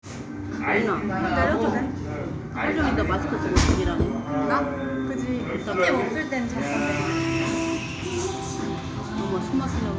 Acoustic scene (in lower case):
cafe